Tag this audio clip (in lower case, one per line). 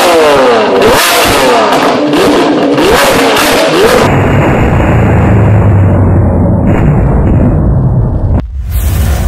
vehicle
car